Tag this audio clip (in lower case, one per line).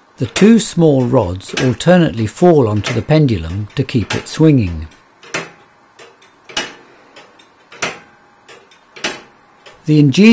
speech